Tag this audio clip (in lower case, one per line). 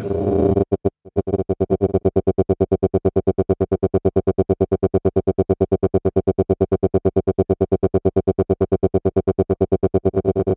musical instrument
music
synthesizer